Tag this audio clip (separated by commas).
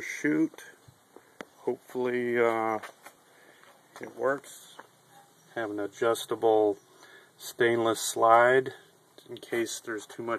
Speech